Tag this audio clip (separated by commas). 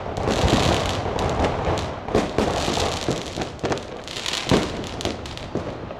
Explosion, Fireworks